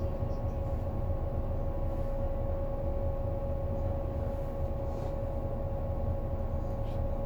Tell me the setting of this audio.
bus